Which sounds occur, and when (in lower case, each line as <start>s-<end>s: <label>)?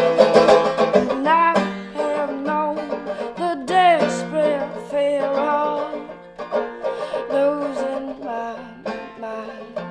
0.0s-9.9s: music
1.2s-1.8s: female singing
1.8s-1.9s: breathing
2.0s-3.0s: female singing
3.1s-3.3s: breathing
3.3s-6.1s: female singing
6.8s-7.2s: breathing
7.3s-9.9s: female singing